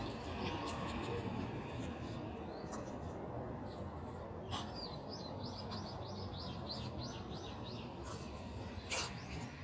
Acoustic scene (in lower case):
street